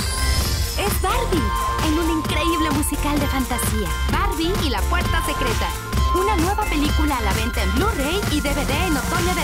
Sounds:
speech, music

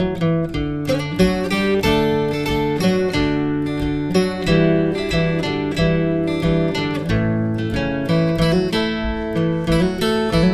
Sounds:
music, acoustic guitar

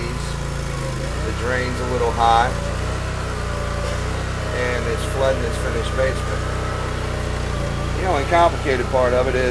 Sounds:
speech

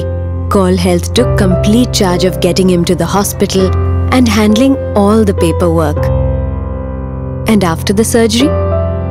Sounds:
speech, music

